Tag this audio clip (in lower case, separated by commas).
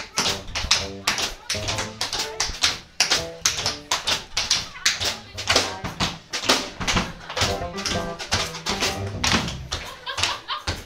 tap dancing